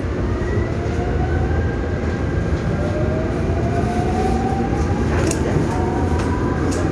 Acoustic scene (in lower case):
subway train